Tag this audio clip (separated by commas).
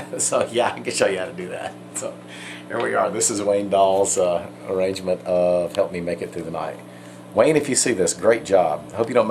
Speech